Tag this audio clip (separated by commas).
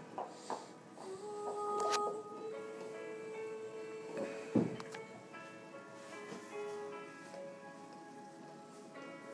dog howling